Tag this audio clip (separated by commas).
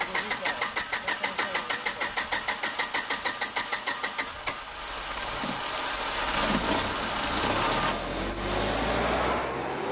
outside, urban or man-made, Speech